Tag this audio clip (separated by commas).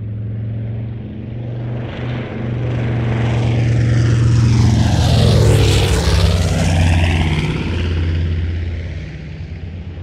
airplane flyby